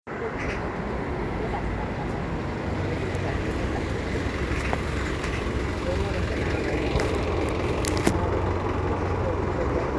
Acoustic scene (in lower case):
residential area